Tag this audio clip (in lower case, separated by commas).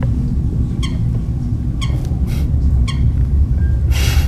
animal, wild animals, bird